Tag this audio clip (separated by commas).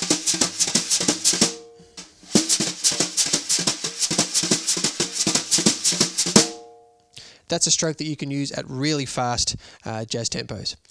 Musical instrument, Drum, Music, Speech, inside a small room, Drum kit